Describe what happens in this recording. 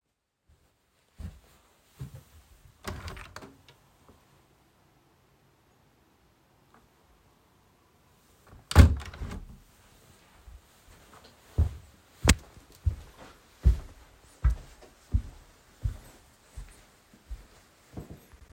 I walked to the window opened it, looked out and closed it again. Then walked out of the room.